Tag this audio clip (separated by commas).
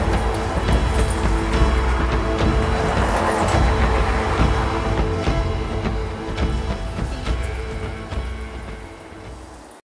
Speech, clink, Music